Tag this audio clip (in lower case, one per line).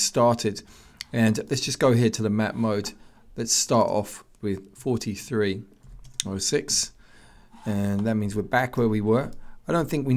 speech